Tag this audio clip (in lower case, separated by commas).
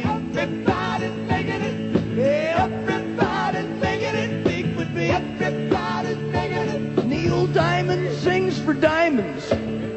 music